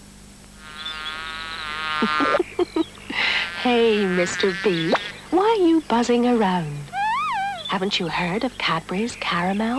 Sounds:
Speech, Television

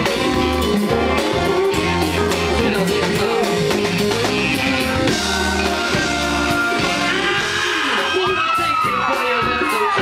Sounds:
Singing, Music, Rock and roll

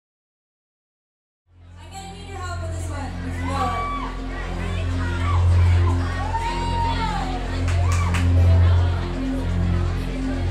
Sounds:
Music, Speech

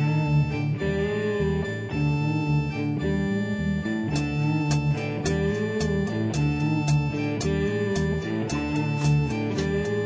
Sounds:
Progressive rock, Music, Rock music, Psychedelic rock

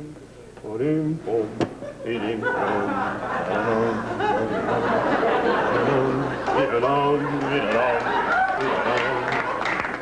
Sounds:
Speech

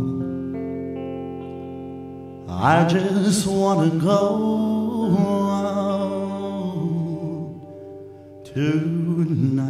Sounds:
Music

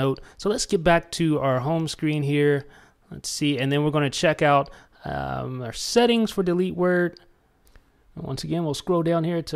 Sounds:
inside a small room, Speech

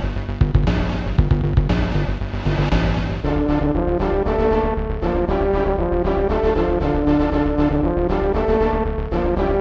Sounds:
Music

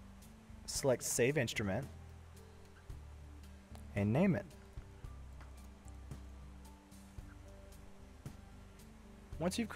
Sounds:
Speech

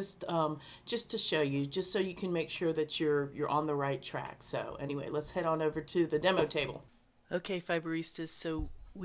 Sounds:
Speech

